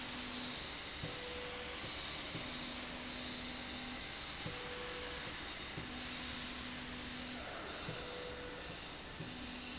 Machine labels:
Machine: slide rail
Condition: normal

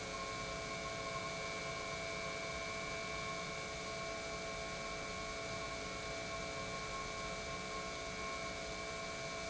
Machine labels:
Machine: pump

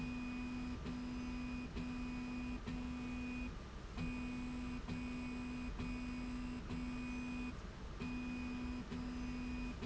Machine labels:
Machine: slide rail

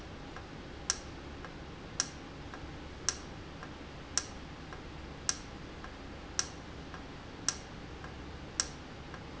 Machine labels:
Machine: valve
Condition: normal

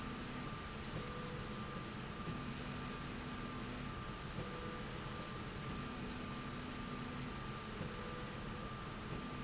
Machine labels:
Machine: slide rail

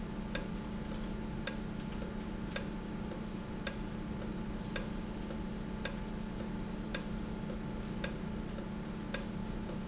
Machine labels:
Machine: valve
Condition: normal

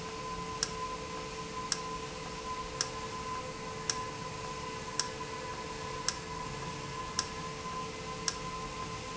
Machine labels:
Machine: valve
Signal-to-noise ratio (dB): -6 dB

